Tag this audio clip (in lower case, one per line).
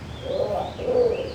wild animals
bird
animal